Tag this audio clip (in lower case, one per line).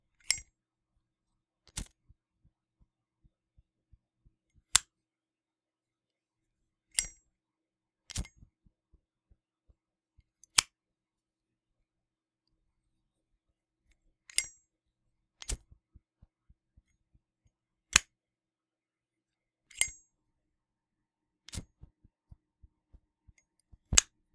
fire